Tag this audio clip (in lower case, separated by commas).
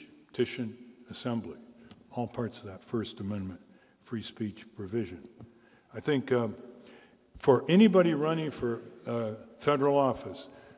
speech